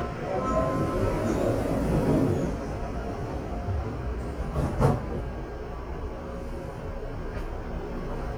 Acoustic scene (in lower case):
subway train